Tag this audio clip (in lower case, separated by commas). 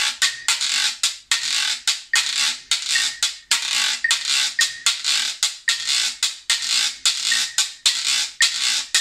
playing guiro